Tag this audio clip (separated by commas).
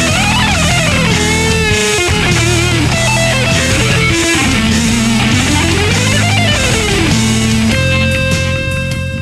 Musical instrument, Guitar, Electric guitar, Plucked string instrument, Music